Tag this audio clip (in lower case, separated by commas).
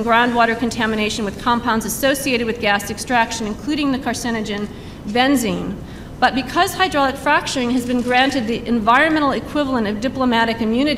speech